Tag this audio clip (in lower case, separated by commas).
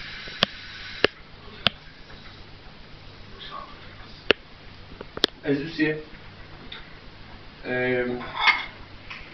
speech